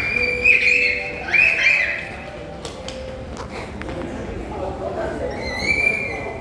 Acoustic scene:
subway station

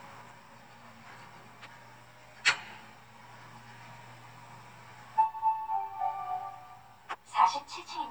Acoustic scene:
elevator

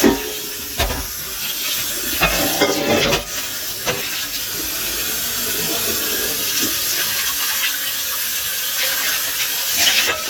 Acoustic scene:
kitchen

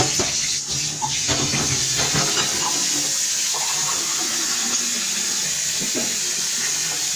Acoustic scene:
kitchen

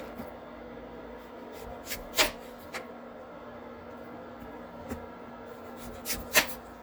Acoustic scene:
kitchen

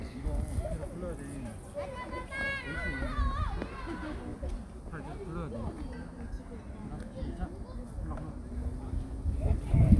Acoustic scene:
park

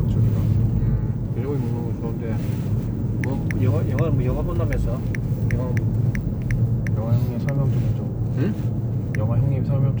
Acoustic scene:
car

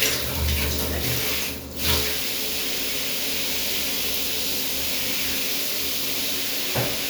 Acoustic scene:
restroom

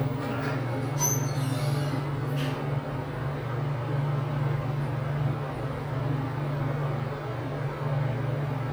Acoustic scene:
elevator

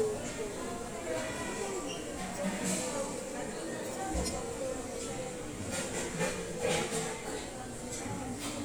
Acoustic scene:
restaurant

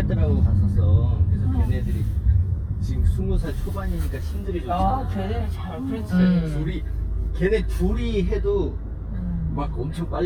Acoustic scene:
car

